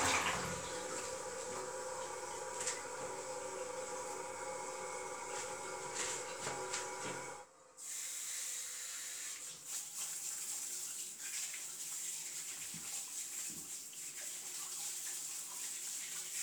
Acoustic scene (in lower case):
restroom